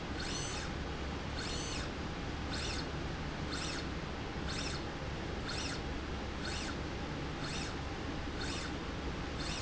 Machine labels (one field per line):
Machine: slide rail